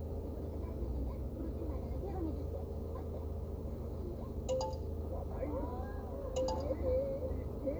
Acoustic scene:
car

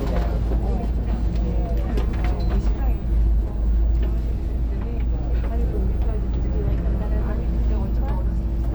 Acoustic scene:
bus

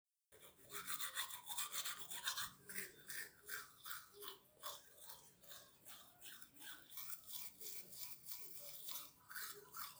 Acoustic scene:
restroom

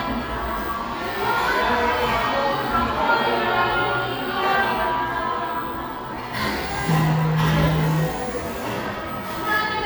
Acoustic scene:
cafe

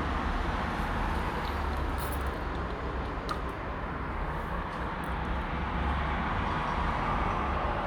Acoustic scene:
street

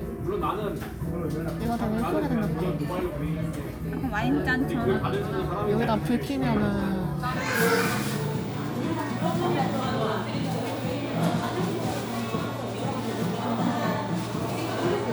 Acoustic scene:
crowded indoor space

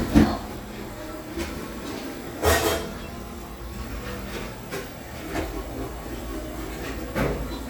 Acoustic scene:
cafe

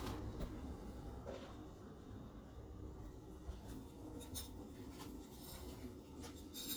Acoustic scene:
kitchen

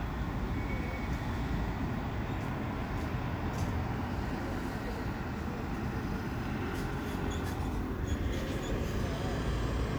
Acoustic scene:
street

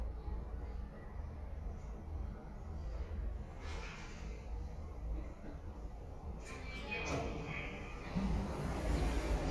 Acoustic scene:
elevator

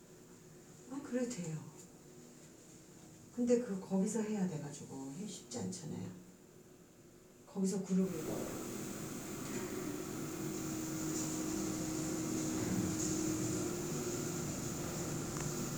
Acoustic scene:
elevator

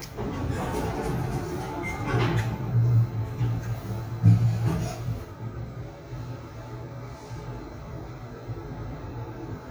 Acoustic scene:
elevator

